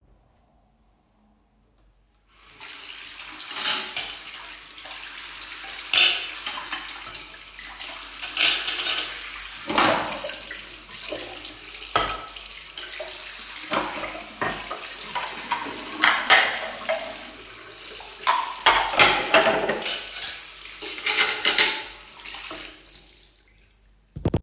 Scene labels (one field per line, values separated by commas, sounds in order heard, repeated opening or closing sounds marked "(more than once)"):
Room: kitchen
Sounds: running water, cutlery and dishes